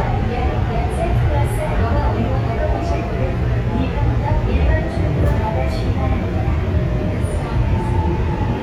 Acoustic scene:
subway train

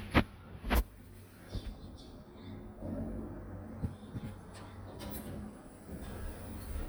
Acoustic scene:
elevator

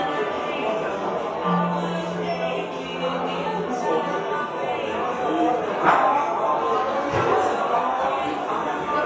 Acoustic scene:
cafe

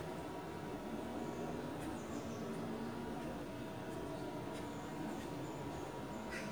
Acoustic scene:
park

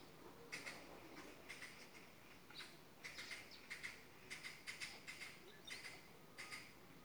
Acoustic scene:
park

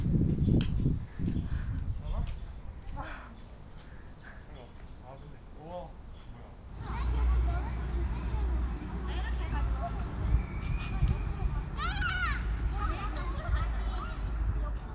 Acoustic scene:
park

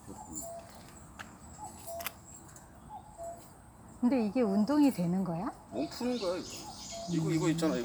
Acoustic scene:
park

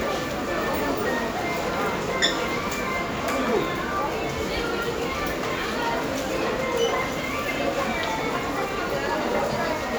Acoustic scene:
crowded indoor space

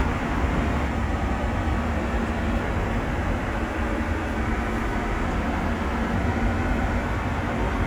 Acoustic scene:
subway station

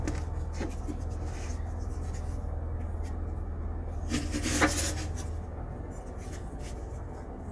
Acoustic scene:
kitchen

